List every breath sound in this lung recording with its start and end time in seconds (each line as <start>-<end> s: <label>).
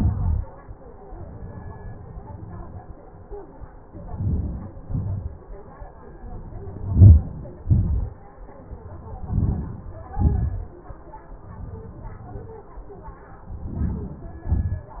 3.76-4.78 s: inhalation
4.84-5.62 s: exhalation
6.21-7.69 s: inhalation
7.72-8.54 s: exhalation
8.90-9.98 s: inhalation
10.04-10.93 s: exhalation
13.28-14.41 s: inhalation
14.50-15.00 s: exhalation